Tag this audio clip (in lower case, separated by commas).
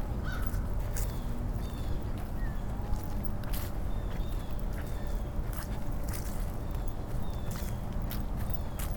footsteps